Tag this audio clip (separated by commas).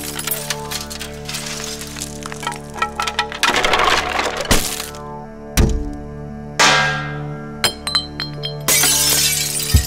Crack